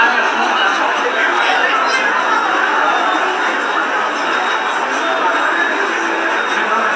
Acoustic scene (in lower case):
subway station